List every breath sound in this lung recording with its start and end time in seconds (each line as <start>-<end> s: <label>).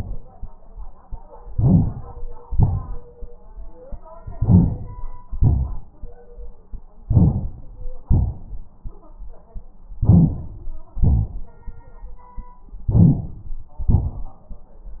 1.54-2.41 s: inhalation
1.54-2.41 s: rhonchi
2.45-3.27 s: exhalation
2.45-3.27 s: rhonchi
4.19-5.24 s: rhonchi
4.19-5.26 s: inhalation
5.26-6.19 s: exhalation
5.26-6.19 s: rhonchi
7.04-7.91 s: inhalation
7.04-7.91 s: rhonchi
8.04-8.73 s: exhalation
8.04-8.73 s: rhonchi
9.92-10.91 s: inhalation
9.92-10.91 s: rhonchi
10.97-11.96 s: exhalation
10.97-11.96 s: rhonchi
12.79-13.78 s: inhalation
12.79-13.78 s: rhonchi
13.83-14.67 s: exhalation
13.83-14.67 s: rhonchi